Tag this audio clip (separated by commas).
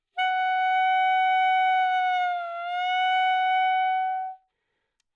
woodwind instrument, Musical instrument, Music